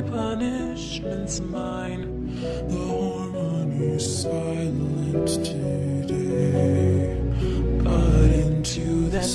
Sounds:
music, lullaby

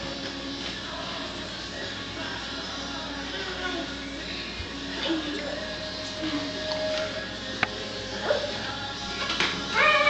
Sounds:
speech, music

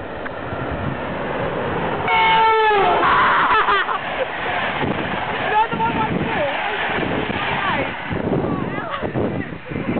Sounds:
speech

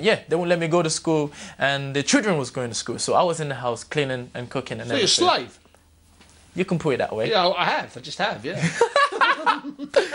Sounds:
speech

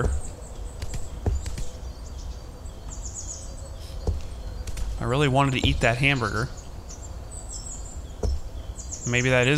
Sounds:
insect, speech, outside, rural or natural

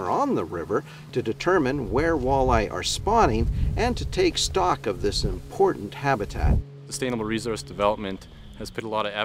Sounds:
speech

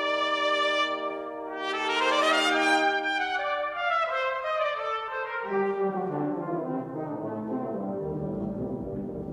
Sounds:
trumpet, brass instrument

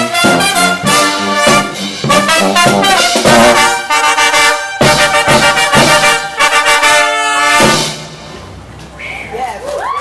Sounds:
trumpet, trombone, brass instrument

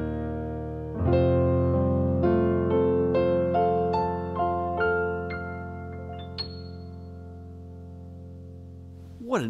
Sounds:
musical instrument, keyboard (musical), electric piano, piano, speech, music

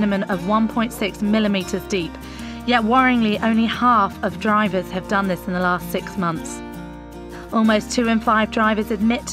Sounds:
music, speech

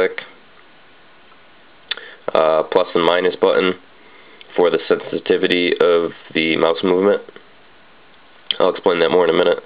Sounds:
speech

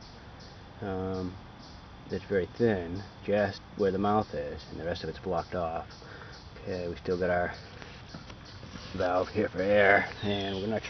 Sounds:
speech

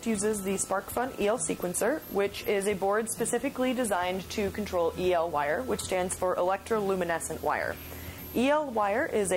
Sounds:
speech

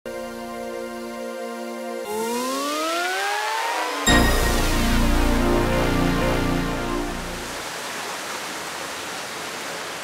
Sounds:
music, outside, rural or natural

